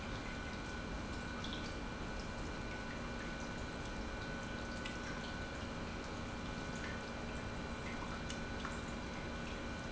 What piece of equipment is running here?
pump